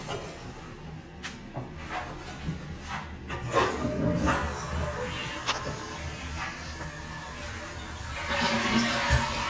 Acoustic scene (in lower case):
restroom